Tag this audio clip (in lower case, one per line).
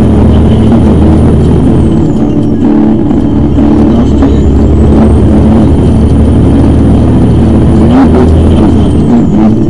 motor vehicle (road)
music
speech
vehicle